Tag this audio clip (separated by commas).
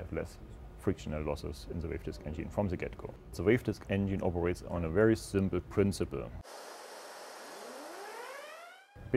Speech